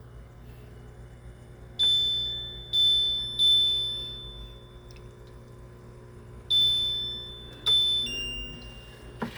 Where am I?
in a kitchen